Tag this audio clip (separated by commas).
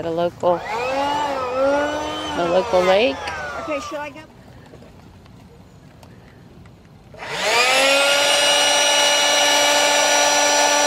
Speech, outside, rural or natural